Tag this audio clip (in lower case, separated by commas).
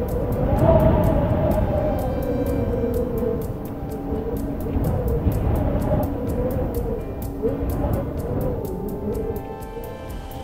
wind noise (microphone), music